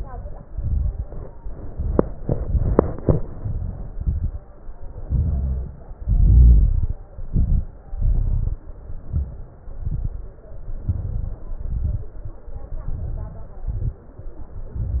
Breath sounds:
Inhalation: 0.00-0.40 s, 1.60-2.22 s, 3.13-3.93 s, 5.02-5.87 s, 7.14-7.79 s, 8.82-9.57 s, 10.76-11.51 s, 12.81-13.62 s, 14.61-15.00 s
Exhalation: 0.45-1.02 s, 2.24-3.10 s, 3.97-4.44 s, 6.00-6.99 s, 7.89-8.64 s, 9.63-10.39 s, 11.54-12.18 s, 13.68-14.08 s
Crackles: 0.00-0.40 s, 0.45-1.02 s, 1.60-2.22 s, 2.24-3.10 s, 3.13-3.93 s, 3.97-4.44 s, 5.02-5.87 s, 6.00-6.99 s, 7.14-7.79 s, 7.89-8.64 s, 8.82-9.57 s, 9.63-10.39 s, 10.76-11.51 s, 11.54-12.18 s, 12.81-13.62 s, 13.68-14.08 s, 14.61-15.00 s

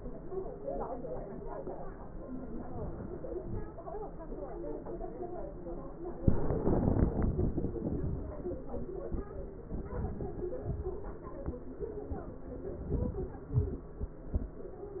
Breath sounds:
Inhalation: 2.67-3.16 s, 9.85-10.47 s, 12.91-13.44 s
Exhalation: 3.43-3.82 s, 10.63-11.14 s, 13.56-13.99 s

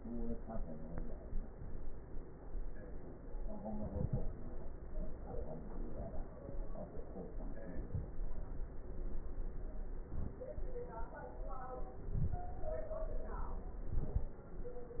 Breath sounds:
Inhalation: 7.82-8.15 s, 10.08-10.41 s, 12.12-12.45 s, 13.95-14.28 s

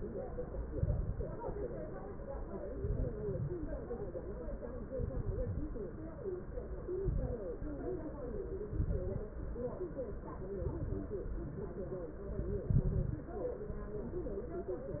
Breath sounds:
Exhalation: 0.68-1.42 s, 2.79-3.53 s, 4.94-5.68 s, 7.03-7.66 s, 8.64-9.27 s, 10.58-11.21 s, 12.65-13.28 s
Crackles: 0.68-1.42 s, 2.79-3.53 s, 4.94-5.68 s, 7.03-7.66 s, 8.64-9.27 s, 10.58-11.21 s, 12.65-13.28 s

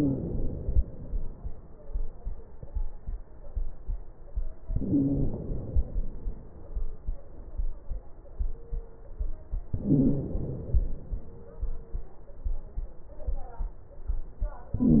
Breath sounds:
Inhalation: 0.00-1.21 s, 4.71-6.15 s, 9.73-11.10 s, 14.75-15.00 s
Wheeze: 0.00-0.49 s, 4.71-5.43 s, 9.73-10.41 s, 14.75-15.00 s

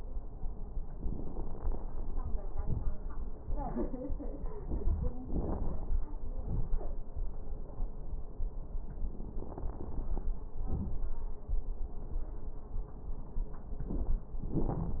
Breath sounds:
Inhalation: 1.17-2.04 s, 5.24-6.00 s, 9.41-10.28 s, 13.77-14.25 s
Exhalation: 2.57-2.99 s, 6.37-6.88 s, 10.68-11.08 s, 14.40-15.00 s
Crackles: 1.17-2.04 s, 2.57-2.99 s, 5.24-6.00 s, 6.37-6.88 s, 9.41-10.28 s, 10.68-11.08 s, 13.77-14.25 s, 14.40-15.00 s

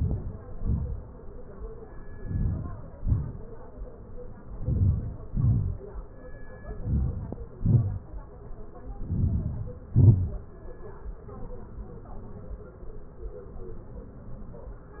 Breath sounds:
Inhalation: 0.00-0.38 s, 2.25-2.68 s, 4.64-5.19 s, 6.83-7.43 s, 9.10-9.79 s
Exhalation: 0.55-0.92 s, 2.98-3.41 s, 5.37-5.72 s, 7.63-8.07 s, 9.96-10.46 s

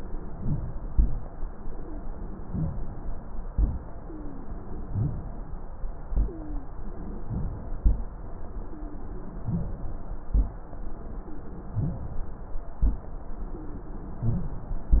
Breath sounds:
Inhalation: 0.00-0.86 s, 2.45-3.46 s, 4.84-6.05 s, 7.23-7.80 s, 9.43-10.30 s, 11.73-12.83 s, 14.21-15.00 s
Exhalation: 0.87-1.31 s, 3.51-4.84 s, 6.09-7.23 s, 7.80-9.39 s, 10.32-11.69 s, 12.81-14.19 s
Wheeze: 4.00-4.46 s, 6.22-6.68 s, 8.61-9.32 s, 10.89-11.37 s, 13.44-13.89 s
Rhonchi: 0.21-0.76 s, 0.87-1.31 s, 2.45-2.73 s, 3.51-3.85 s, 4.84-5.26 s, 7.23-7.59 s, 7.80-8.14 s, 9.43-9.81 s, 10.30-10.50 s, 11.73-12.09 s, 12.83-13.09 s, 14.21-14.58 s

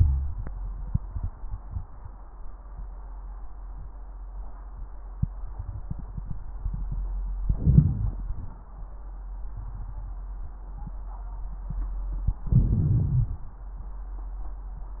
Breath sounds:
Inhalation: 7.42-8.25 s, 12.51-13.64 s

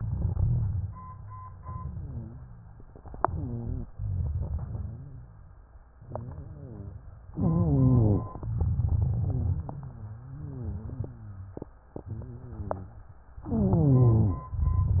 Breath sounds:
Inhalation: 3.00-3.87 s, 7.32-8.26 s, 13.45-14.50 s
Exhalation: 3.97-5.56 s, 8.37-10.15 s
Rhonchi: 1.86-2.43 s, 3.25-3.87 s, 3.97-5.56 s, 5.96-7.08 s, 7.32-8.26 s, 9.18-11.77 s, 12.03-13.17 s, 13.45-14.50 s
Crackles: 0.04-1.54 s, 8.37-10.15 s

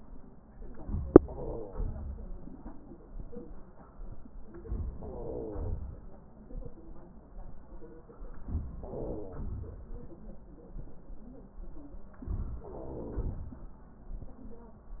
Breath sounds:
Inhalation: 0.60-1.10 s, 4.47-4.96 s, 8.33-8.80 s, 12.23-12.62 s
Exhalation: 1.11-2.61 s, 4.96-6.21 s, 8.77-10.15 s, 12.64-13.83 s
Wheeze: 1.11-2.01 s, 4.94-5.84 s, 8.77-9.45 s, 12.64-13.45 s

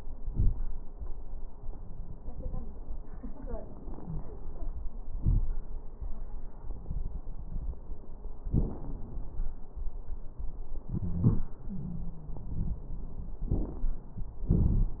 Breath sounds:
Inhalation: 13.52-13.92 s
Exhalation: 14.48-15.00 s
Wheeze: 10.87-11.47 s, 11.68-12.80 s
Crackles: 13.52-13.92 s, 14.48-15.00 s

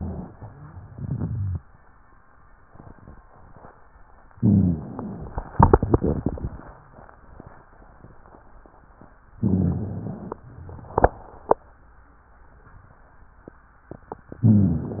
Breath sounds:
Inhalation: 4.34-5.50 s, 9.41-10.42 s, 14.44-15.00 s
Exhalation: 0.82-1.63 s
Rhonchi: 4.34-4.92 s, 9.41-10.17 s, 14.44-15.00 s
Crackles: 0.82-1.63 s

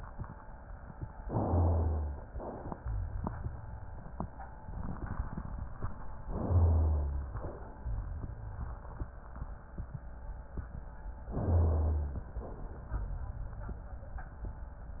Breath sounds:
Inhalation: 1.21-2.22 s, 6.27-7.34 s, 11.28-12.40 s
Exhalation: 2.22-4.00 s, 7.34-9.18 s, 12.40-14.04 s
Rhonchi: 1.45-2.24 s, 2.83-4.13 s, 6.47-7.34 s, 7.82-9.23 s, 11.45-12.20 s

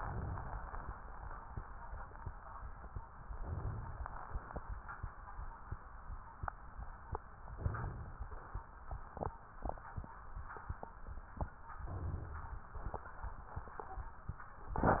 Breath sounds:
Inhalation: 0.00-0.82 s, 3.28-4.21 s, 7.61-8.54 s, 11.86-12.55 s

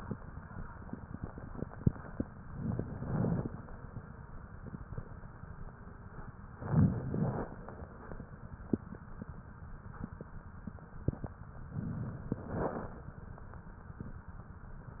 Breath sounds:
Inhalation: 2.52-3.51 s, 6.58-7.57 s, 11.71-12.33 s
Crackles: 2.52-3.51 s, 6.58-7.57 s, 11.71-12.33 s

